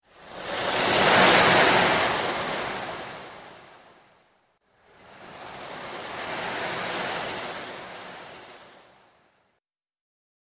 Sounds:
ocean, water, waves

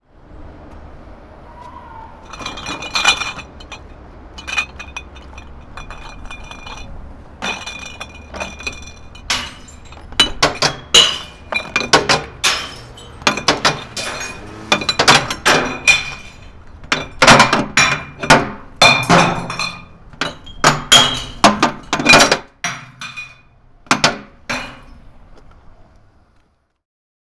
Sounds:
glass

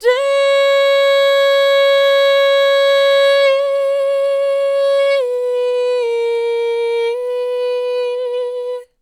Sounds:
human voice, female singing, singing

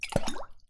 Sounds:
liquid, water, splash

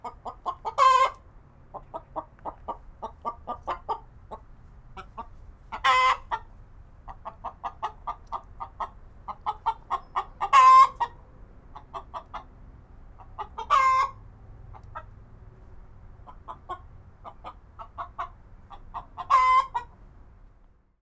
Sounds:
livestock, animal, fowl, rooster

